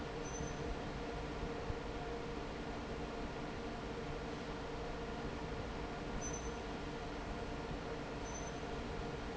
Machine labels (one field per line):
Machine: fan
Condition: normal